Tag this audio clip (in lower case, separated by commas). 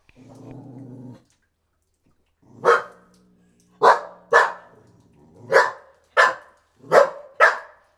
animal, bark, pets, dog